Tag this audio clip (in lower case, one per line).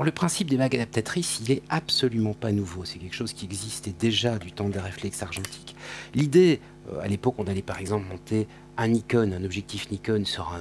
speech